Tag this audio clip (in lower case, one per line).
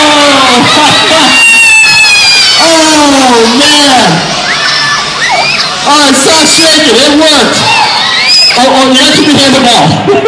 children shouting
crowd